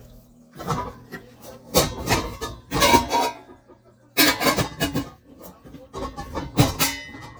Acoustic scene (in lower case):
kitchen